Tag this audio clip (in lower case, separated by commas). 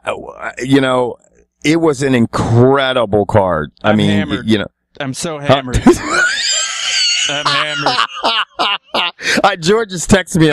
speech